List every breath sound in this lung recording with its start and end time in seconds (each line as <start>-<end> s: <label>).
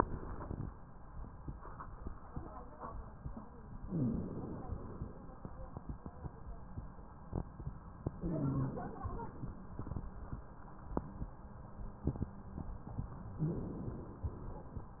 3.83-5.33 s: inhalation
3.85-4.42 s: wheeze
8.22-9.72 s: inhalation
8.23-8.80 s: wheeze
13.43-14.93 s: inhalation